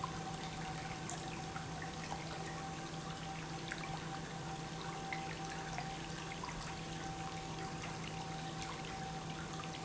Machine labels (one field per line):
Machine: pump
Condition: normal